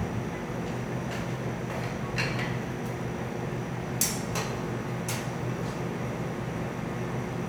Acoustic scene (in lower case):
cafe